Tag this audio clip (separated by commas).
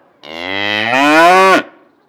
Animal, livestock